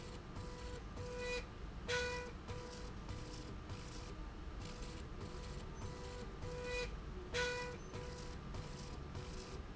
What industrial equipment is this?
slide rail